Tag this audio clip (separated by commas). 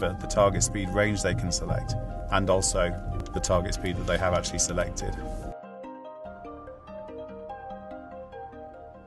Speech, Music